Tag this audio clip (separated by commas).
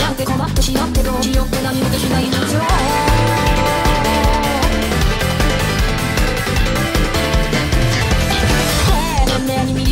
Music